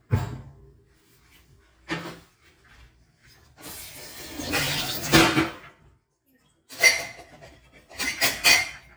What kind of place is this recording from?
kitchen